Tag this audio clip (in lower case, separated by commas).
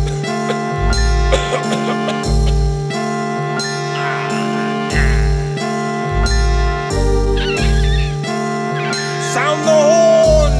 music